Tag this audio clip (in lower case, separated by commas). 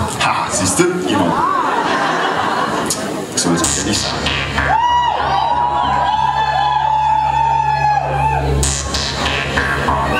music, speech